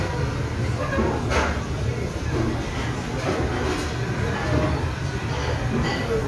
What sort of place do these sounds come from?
restaurant